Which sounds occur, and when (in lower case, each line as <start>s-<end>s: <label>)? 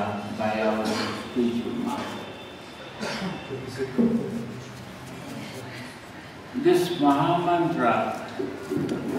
0.0s-9.1s: background noise
0.5s-2.3s: male speech
3.6s-4.7s: male speech
6.5s-8.2s: male speech